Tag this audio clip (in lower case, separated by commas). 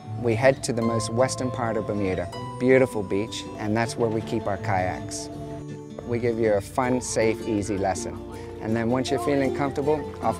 speech, music